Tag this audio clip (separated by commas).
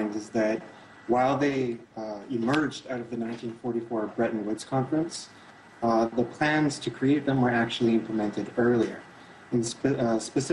Speech